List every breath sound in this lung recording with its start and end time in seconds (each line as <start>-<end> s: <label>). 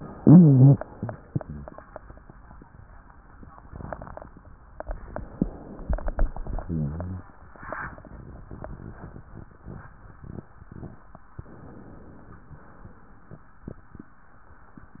0.14-0.76 s: rhonchi
0.90-1.19 s: rhonchi
1.28-1.70 s: rhonchi
6.61-7.23 s: rhonchi
11.41-12.45 s: inhalation
12.45-13.40 s: exhalation